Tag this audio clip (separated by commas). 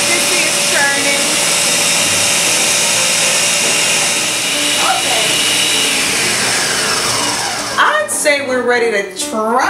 Music, inside a small room, Speech